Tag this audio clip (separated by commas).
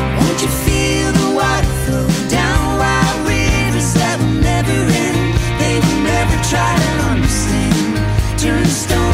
Music